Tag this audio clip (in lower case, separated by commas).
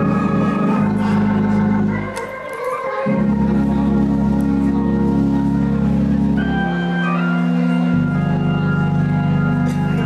speech, gospel music, music